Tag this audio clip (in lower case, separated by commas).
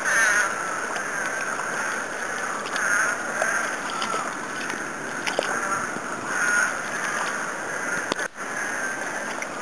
footsteps, gurgling